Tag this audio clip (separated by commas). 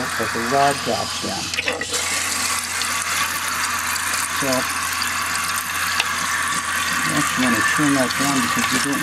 Water